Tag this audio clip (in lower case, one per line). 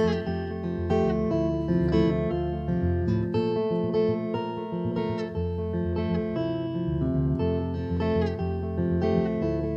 music
guitar
musical instrument